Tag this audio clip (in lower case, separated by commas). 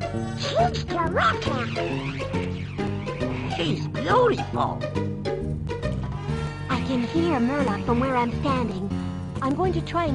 speech, music